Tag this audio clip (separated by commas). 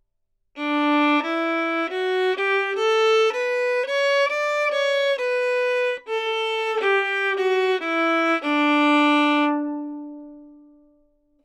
Music, Bowed string instrument, Musical instrument